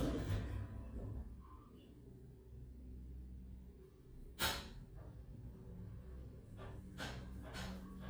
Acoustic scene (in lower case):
elevator